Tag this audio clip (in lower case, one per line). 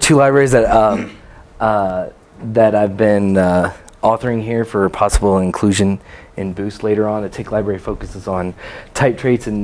speech